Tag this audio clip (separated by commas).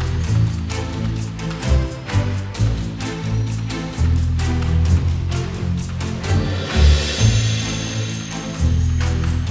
Music, Video game music